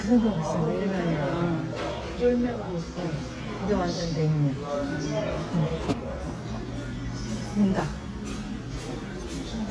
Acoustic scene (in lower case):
crowded indoor space